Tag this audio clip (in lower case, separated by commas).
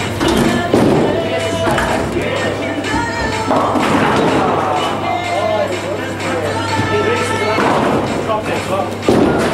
speech, music, inside a public space